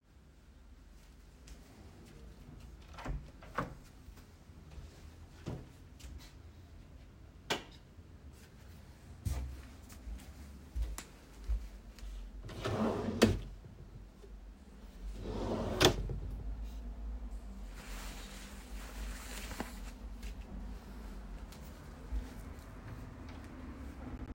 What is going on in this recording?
I entered from the Hallway to the bedroom, opened the door and switched the lights on, then I went to my drawer to get a Tshirt, put that on and left.